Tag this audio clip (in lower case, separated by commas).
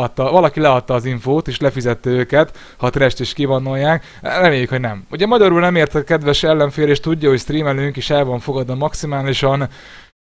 tick, speech